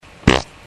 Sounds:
fart

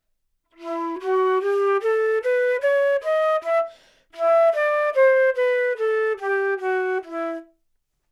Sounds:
woodwind instrument
musical instrument
music

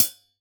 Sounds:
percussion
hi-hat
musical instrument
cymbal
music

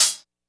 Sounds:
musical instrument
percussion
hi-hat
cymbal
music

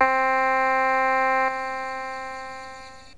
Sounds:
keyboard (musical)
music
musical instrument

